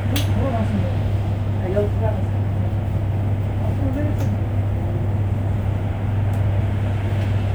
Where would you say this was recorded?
on a bus